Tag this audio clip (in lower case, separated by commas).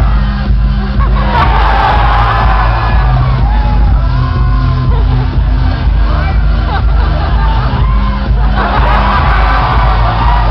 music, dance music, speech